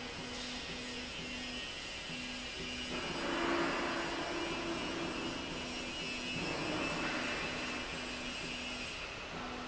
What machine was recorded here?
slide rail